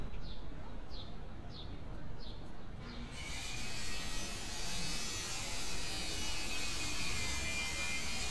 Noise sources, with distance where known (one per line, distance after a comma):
unidentified powered saw, near